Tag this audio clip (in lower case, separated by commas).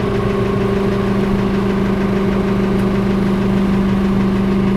engine